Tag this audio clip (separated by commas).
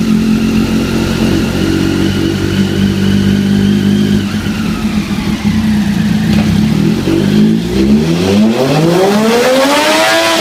Microwave oven